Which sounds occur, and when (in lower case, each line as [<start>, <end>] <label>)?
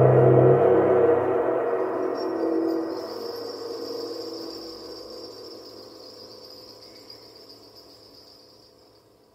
[0.00, 9.34] music
[1.96, 9.34] rattle